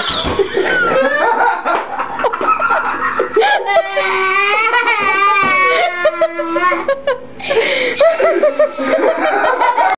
Laughter of a woman crying of a child